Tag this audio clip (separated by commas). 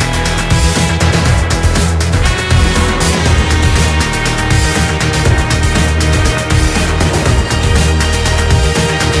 Music